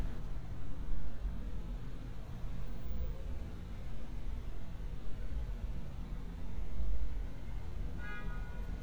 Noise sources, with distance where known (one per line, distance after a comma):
car horn, near